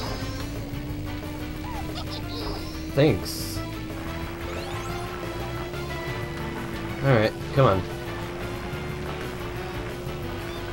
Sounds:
vehicle

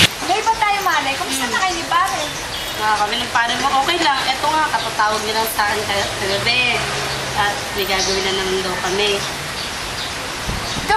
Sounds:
speech

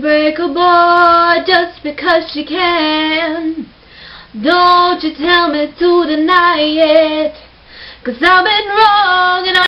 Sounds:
female singing

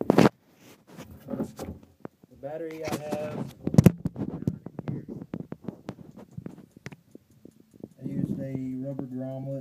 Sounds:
speech

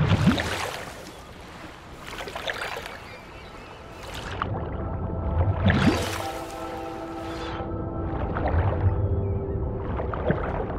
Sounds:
music

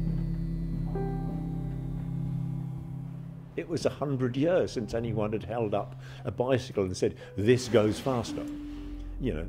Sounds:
speech
music

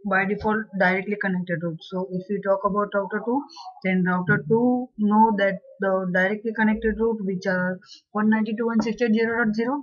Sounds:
speech

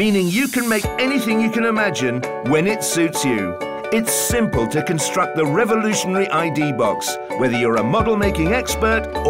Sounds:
speech
music

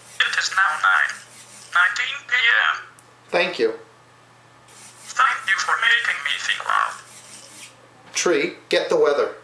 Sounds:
speech
conversation
man speaking
speech synthesizer

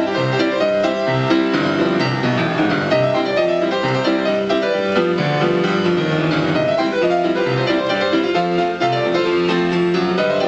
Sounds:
music

